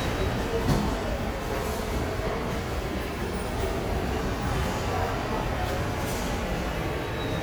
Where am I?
in a subway station